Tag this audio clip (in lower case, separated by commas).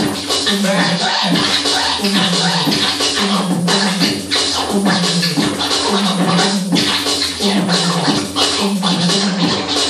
music, scratching (performance technique), electronic music